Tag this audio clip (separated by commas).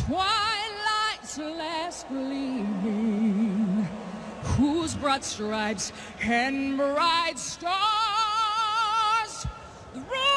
Female singing